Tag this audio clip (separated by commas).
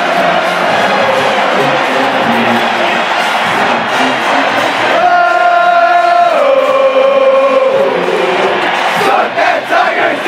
singing choir